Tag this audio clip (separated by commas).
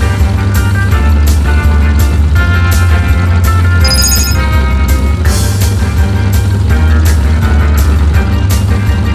Motorboat, Music